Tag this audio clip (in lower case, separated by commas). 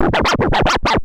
scratching (performance technique), music, musical instrument